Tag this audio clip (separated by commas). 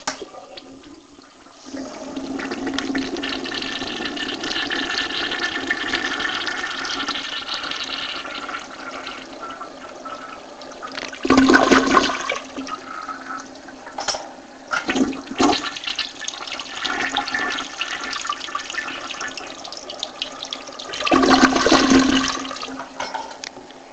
Toilet flush, home sounds